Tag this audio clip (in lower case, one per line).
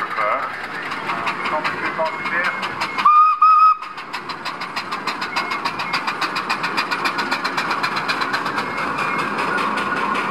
speech
vehicle
car horn